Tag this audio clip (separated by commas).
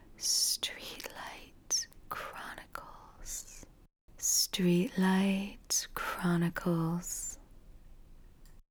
Whispering, Human voice